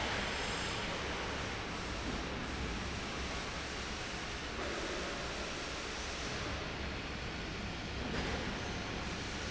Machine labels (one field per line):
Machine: fan